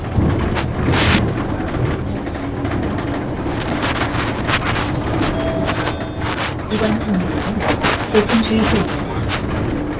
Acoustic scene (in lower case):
bus